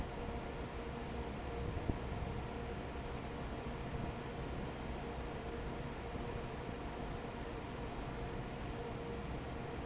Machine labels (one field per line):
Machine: fan